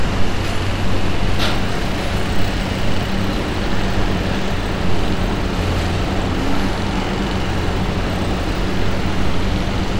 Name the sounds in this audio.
jackhammer, unidentified impact machinery